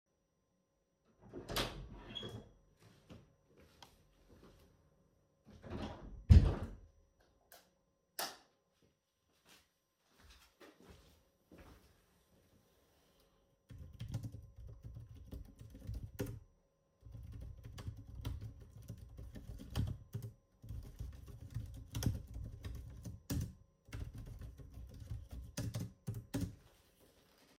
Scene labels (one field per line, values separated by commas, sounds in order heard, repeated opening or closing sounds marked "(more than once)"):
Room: office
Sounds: door (more than once), footsteps, light switch, keyboard typing